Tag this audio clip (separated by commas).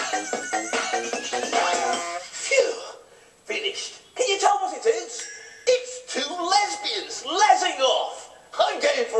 Music, Speech